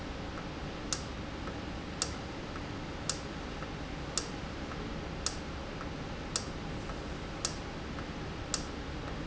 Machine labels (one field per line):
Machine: valve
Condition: normal